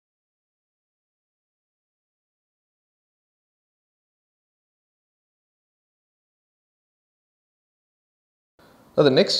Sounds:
Speech

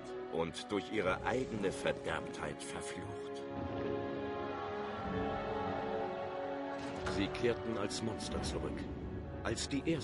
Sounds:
Music, Speech

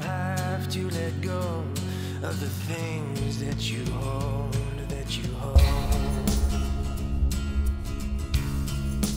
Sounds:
Music

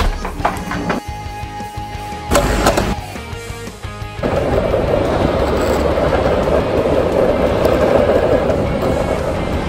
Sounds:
skateboarding

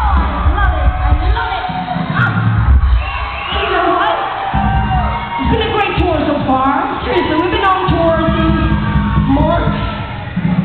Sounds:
Crowd, Music, Speech

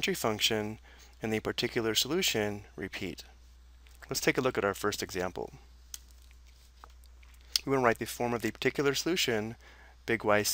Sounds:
Speech

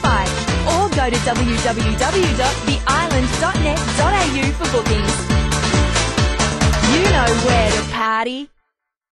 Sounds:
Speech, Music

